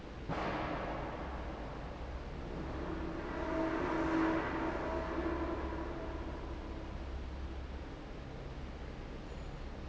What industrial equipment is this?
fan